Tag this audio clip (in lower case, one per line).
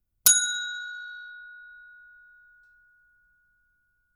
bell